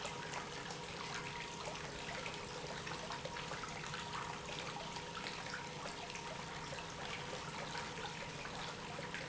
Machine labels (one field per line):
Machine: pump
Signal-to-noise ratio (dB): 6 dB